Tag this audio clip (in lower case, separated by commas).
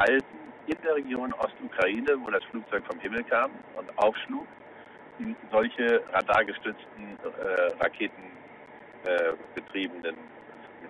radio, speech